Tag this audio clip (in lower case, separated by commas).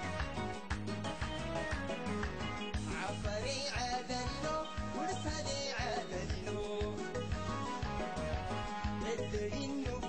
music